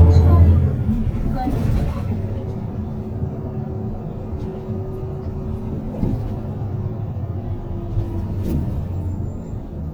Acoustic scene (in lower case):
bus